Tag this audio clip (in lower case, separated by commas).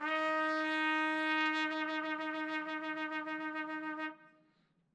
brass instrument, music, musical instrument, trumpet